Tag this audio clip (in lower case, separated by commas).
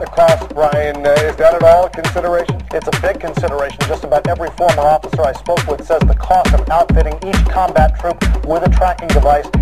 music, speech